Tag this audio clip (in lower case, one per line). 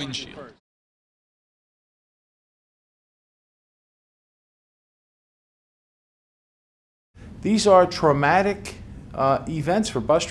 speech